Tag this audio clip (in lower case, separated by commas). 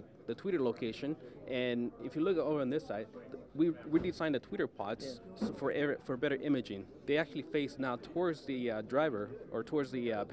speech